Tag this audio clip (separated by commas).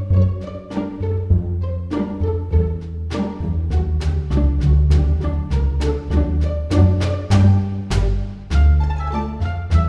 Pizzicato, Bowed string instrument